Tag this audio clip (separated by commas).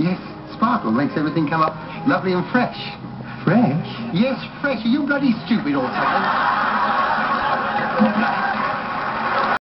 Music, Speech